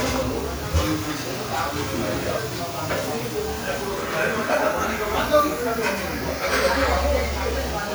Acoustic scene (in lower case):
restaurant